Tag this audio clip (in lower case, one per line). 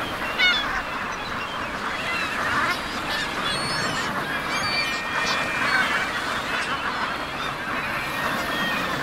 animal
duck
quack